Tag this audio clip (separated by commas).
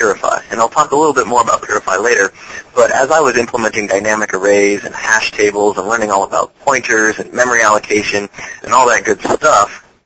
Speech